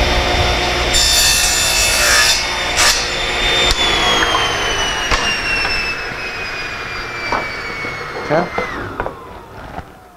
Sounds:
Sawing, Rub, Wood

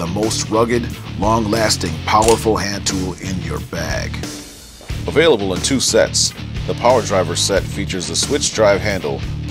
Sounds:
Tools, Speech, Music

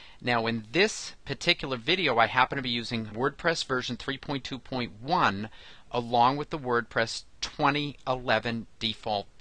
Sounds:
Speech

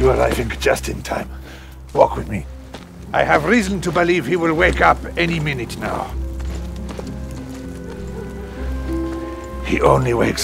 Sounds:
Speech, Music

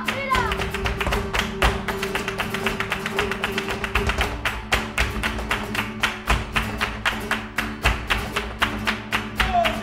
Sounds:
Flamenco, Music

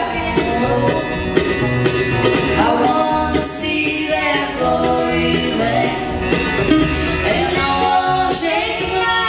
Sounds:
Music, Rock and roll

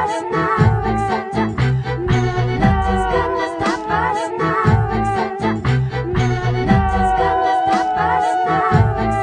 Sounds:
Music

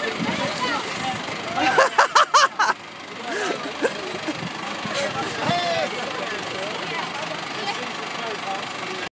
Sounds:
Medium engine (mid frequency), Truck, Speech, Engine, Idling, Vehicle

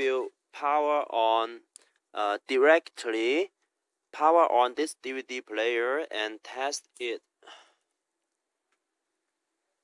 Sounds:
Speech

